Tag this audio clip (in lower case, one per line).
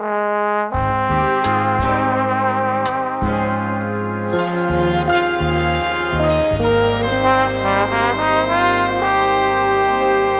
playing trombone